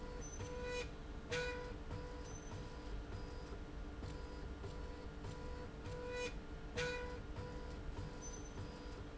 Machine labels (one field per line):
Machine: slide rail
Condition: normal